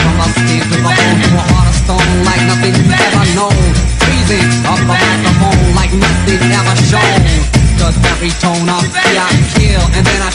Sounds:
pop music, music

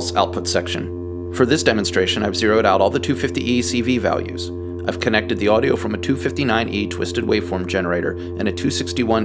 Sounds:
synthesizer, speech

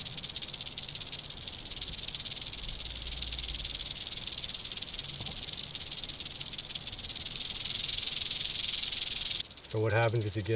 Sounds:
snake rattling

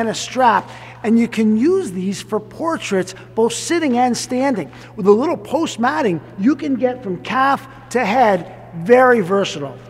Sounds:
speech

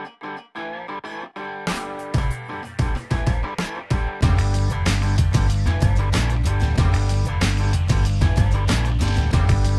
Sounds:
music

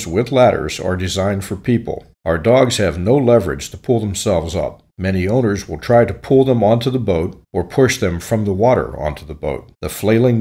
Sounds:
speech

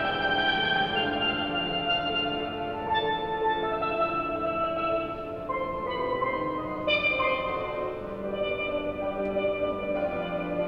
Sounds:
playing steelpan

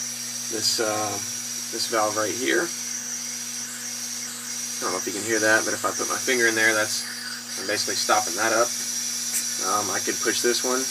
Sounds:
speech, inside a small room

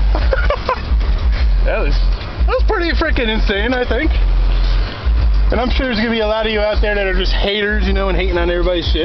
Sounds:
motor vehicle (road), speech, car, vehicle

